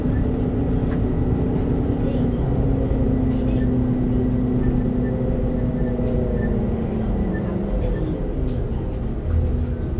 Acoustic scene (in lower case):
bus